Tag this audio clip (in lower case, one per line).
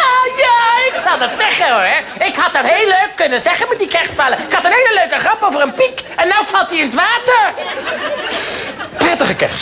speech